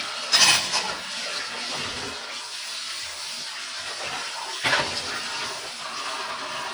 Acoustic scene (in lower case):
kitchen